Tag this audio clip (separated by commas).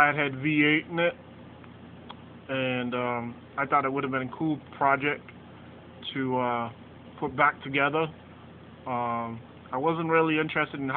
Speech